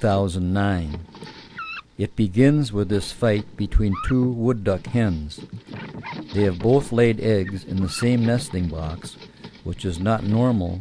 A male narrating about ducks while ducks quack